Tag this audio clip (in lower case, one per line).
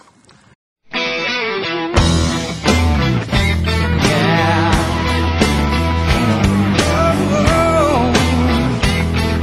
music